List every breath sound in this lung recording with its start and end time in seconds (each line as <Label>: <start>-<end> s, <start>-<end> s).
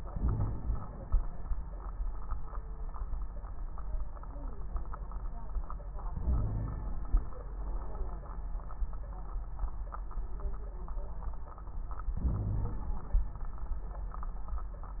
Inhalation: 0.00-0.99 s, 6.12-7.13 s, 12.17-13.20 s
Wheeze: 0.15-0.89 s, 6.21-6.90 s, 12.23-12.82 s